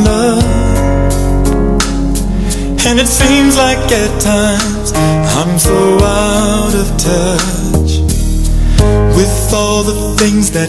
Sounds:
music

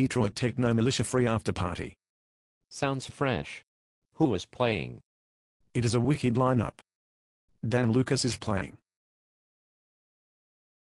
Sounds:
speech

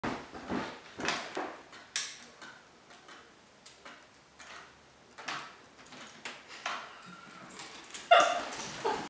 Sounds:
bow-wow

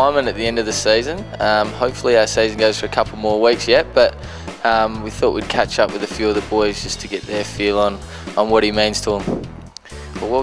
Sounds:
speech, music

